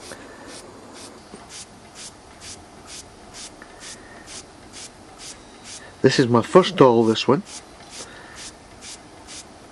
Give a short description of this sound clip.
Intermittent hissing and a man speaking